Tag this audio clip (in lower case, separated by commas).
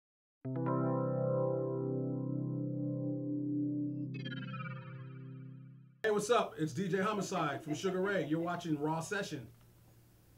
synthesizer, music